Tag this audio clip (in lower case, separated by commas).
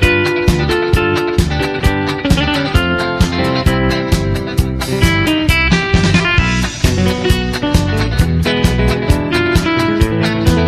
acoustic guitar, guitar, music, bass guitar, playing bass guitar, electric guitar, strum, musical instrument, plucked string instrument